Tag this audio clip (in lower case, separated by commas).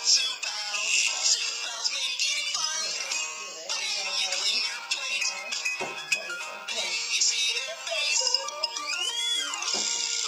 inside a small room, speech, music